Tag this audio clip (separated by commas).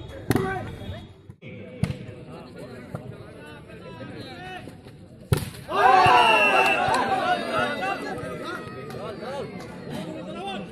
playing volleyball